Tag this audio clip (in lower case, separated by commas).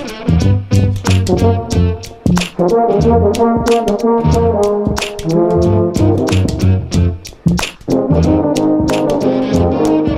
inside a large room or hall, brass instrument, musical instrument, music